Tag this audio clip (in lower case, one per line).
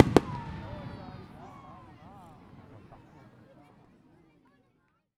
human group actions
crowd
fireworks
explosion